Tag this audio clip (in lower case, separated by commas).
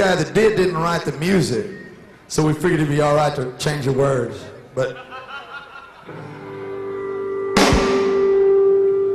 music, speech